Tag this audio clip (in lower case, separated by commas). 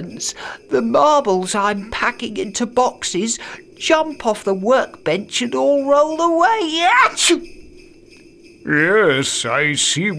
speech, music